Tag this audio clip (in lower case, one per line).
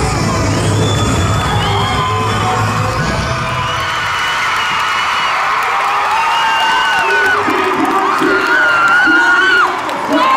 people cheering